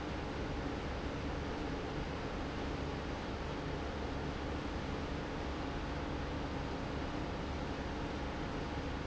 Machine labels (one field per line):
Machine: pump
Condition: abnormal